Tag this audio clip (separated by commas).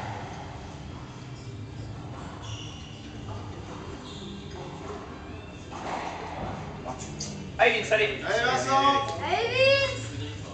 playing squash